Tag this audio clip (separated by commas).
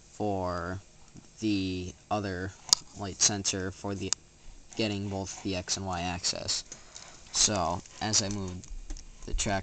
Speech